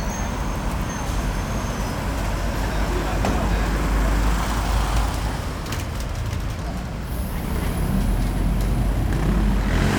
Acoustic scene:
street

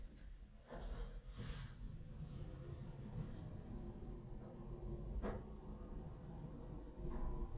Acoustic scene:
elevator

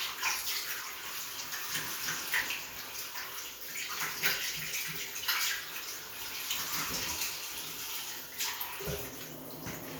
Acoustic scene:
restroom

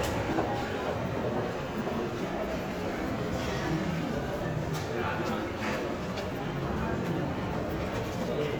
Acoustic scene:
crowded indoor space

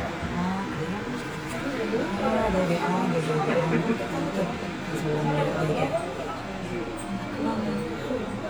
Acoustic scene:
subway train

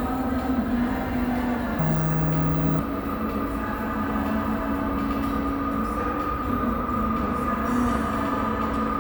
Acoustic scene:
subway station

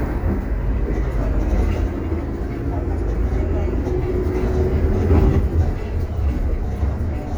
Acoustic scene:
bus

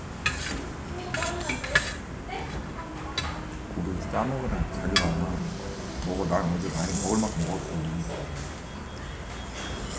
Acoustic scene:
restaurant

